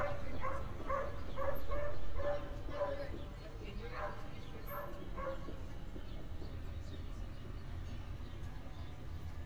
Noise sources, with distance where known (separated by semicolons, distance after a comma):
person or small group talking; dog barking or whining, near